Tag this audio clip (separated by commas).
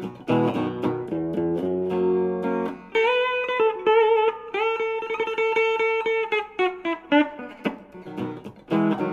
Guitar, Bass guitar, Music